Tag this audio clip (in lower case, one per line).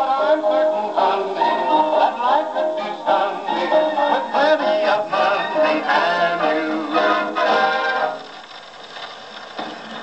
music